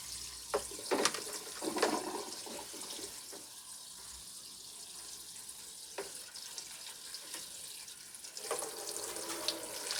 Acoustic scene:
kitchen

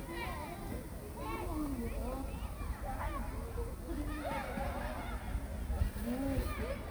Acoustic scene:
park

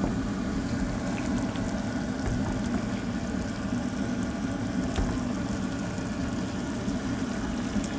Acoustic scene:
kitchen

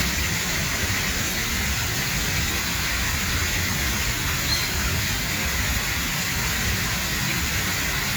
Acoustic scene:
park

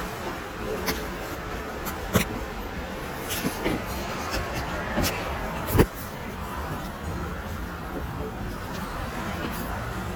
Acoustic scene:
subway station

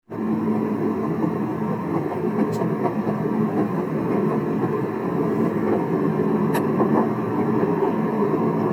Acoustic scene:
car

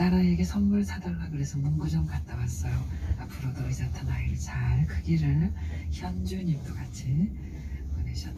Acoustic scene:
car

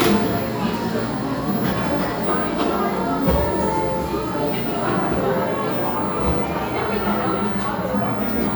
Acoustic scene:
cafe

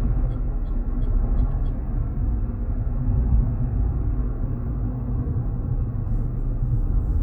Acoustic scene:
car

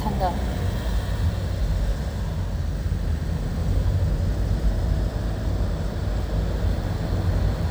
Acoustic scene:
car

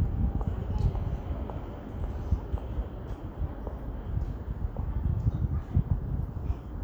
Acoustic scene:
residential area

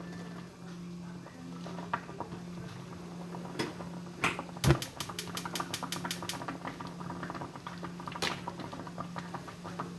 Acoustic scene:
kitchen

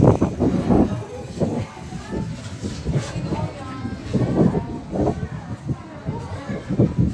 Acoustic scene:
park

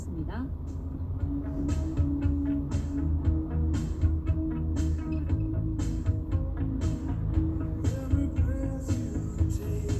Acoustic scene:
car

